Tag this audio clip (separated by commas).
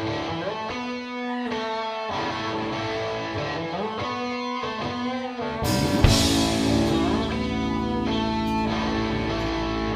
Music, Sampler